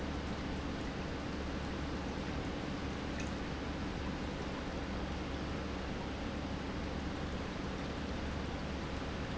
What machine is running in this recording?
pump